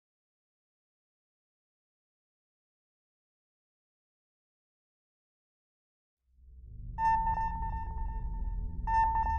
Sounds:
sonar

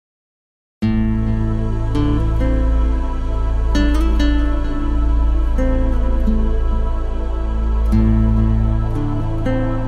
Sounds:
new-age music, music

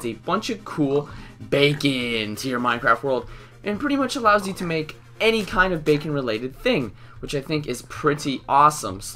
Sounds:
speech, music

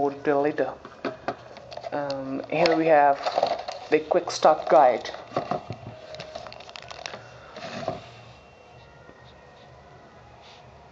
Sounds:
speech

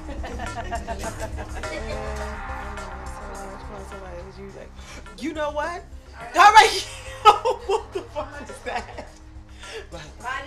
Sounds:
music, speech

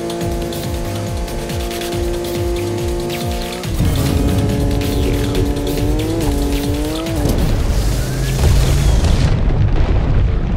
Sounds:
music, car, vehicle, boom

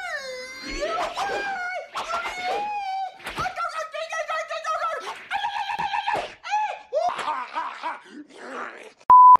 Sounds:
music

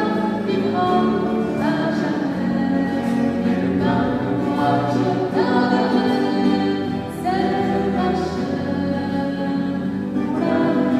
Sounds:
singing, gospel music, music

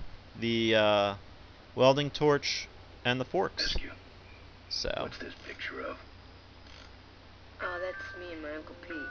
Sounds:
inside a small room, speech, music, ice cream truck

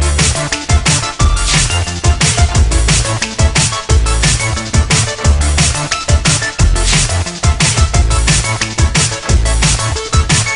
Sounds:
music, drum and bass

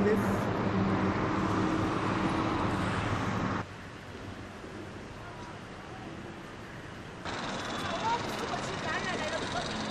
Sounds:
speech, vehicle

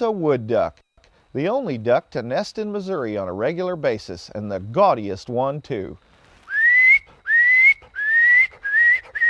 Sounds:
speech

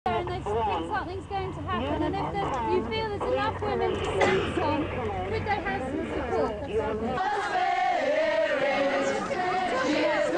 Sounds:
speech, chatter, outside, urban or man-made

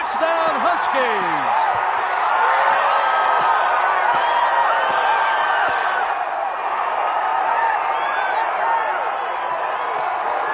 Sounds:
music, speech

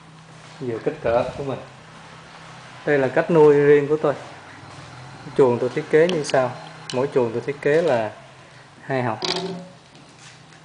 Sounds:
inside a small room, speech

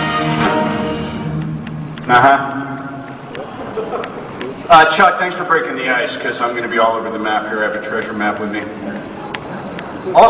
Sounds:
monologue, man speaking, speech, music

